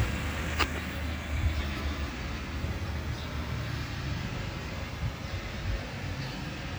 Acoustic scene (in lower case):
residential area